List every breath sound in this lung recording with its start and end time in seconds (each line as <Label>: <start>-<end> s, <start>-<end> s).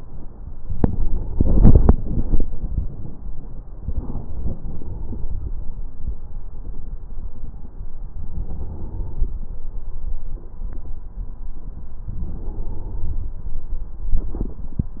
Inhalation: 8.30-9.39 s, 12.12-13.47 s